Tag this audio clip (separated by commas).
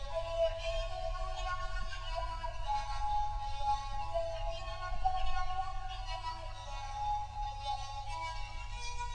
Music, Musical instrument